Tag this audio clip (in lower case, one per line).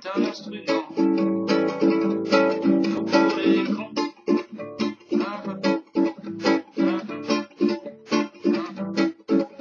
music